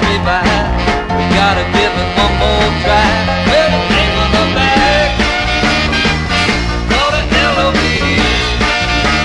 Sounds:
music, soul music

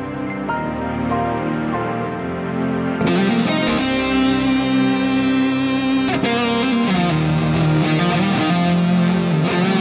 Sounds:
progressive rock, music

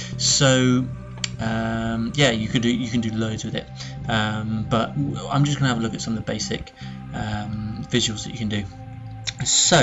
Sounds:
speech, music

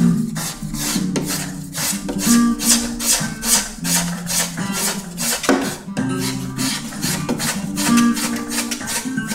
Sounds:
guitar, plucked string instrument, musical instrument, music, strum

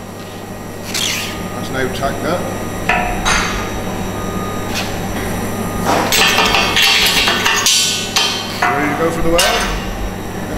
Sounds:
arc welding

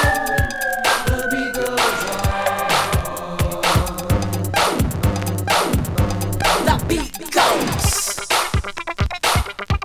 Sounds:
music, scratching (performance technique)

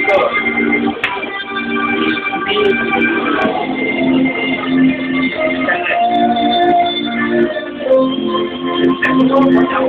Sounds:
strum, music, musical instrument, speech

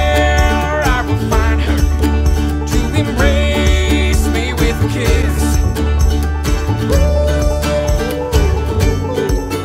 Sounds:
music

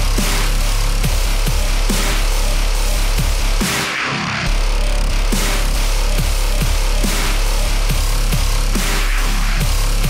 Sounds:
music, dubstep, electronic music

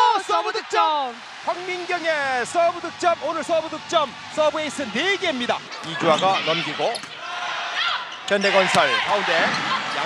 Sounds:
playing volleyball

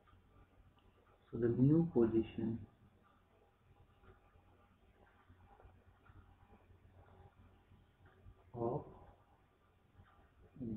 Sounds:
speech

